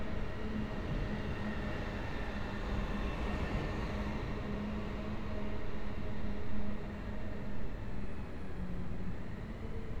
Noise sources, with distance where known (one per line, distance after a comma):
engine of unclear size